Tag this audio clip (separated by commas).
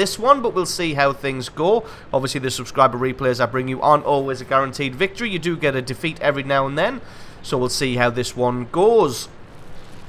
Speech